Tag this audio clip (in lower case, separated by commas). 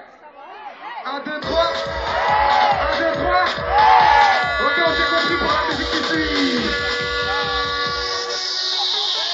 music, speech